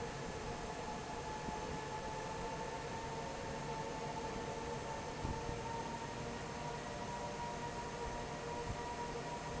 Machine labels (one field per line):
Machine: fan